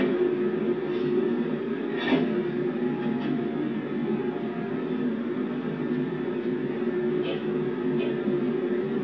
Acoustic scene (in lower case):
subway train